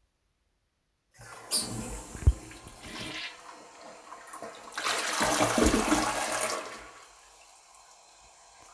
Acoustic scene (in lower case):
restroom